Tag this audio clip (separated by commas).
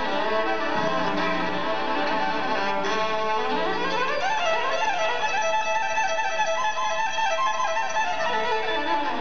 Musical instrument, fiddle, Music